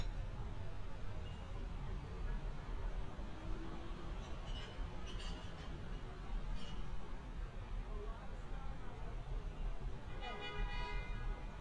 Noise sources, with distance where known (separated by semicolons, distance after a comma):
car horn, near; person or small group talking, far